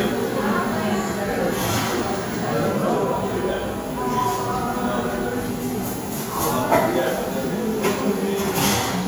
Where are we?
in a cafe